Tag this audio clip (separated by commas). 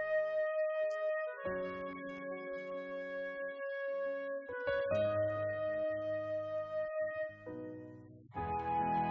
woodwind instrument